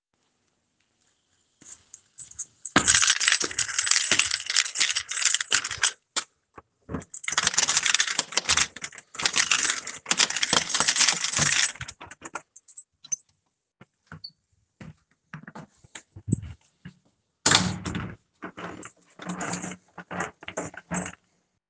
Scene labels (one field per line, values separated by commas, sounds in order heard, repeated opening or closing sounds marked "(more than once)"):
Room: hallway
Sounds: keys, door